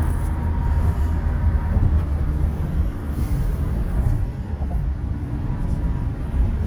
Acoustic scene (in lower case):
car